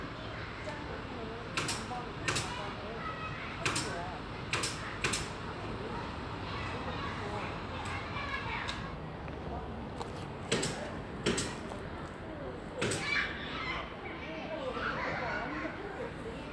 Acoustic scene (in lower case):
residential area